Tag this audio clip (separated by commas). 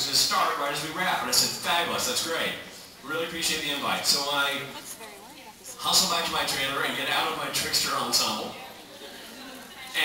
Speech